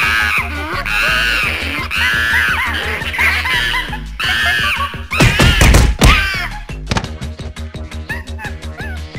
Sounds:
music

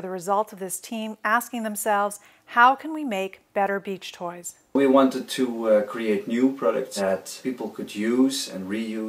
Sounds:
speech

